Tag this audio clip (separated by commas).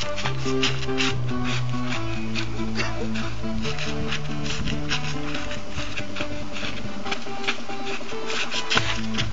Music, Techno